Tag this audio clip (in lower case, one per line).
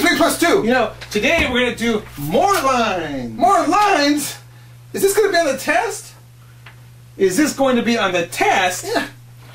speech